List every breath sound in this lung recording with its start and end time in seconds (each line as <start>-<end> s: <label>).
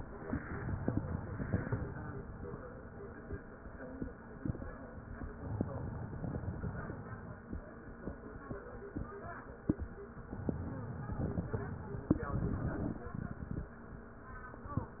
0.25-1.39 s: inhalation
1.39-2.58 s: exhalation
5.26-6.43 s: inhalation
6.43-7.57 s: exhalation
10.55-12.12 s: inhalation
12.12-13.24 s: exhalation